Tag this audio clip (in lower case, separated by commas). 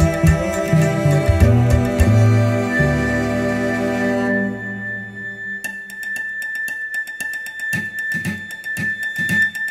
music, classical music, musical instrument, bowed string instrument, cello